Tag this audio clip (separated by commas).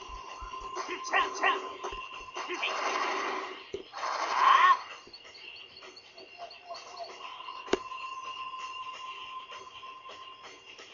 Speech